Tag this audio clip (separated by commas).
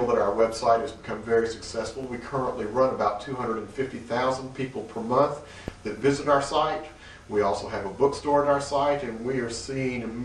Speech